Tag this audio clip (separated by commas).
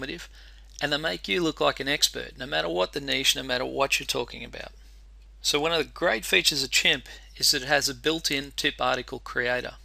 Speech